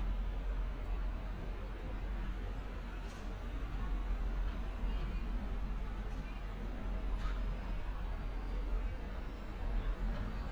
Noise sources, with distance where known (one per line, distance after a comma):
engine of unclear size, far
person or small group talking, far